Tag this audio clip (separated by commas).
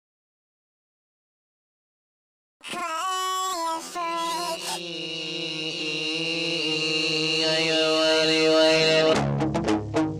Music, Silence